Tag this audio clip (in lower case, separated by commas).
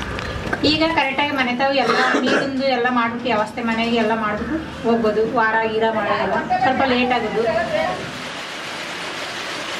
speech